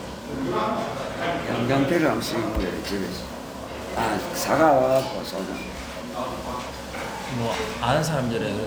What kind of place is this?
restaurant